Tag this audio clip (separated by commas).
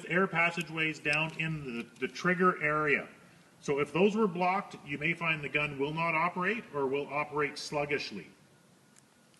Speech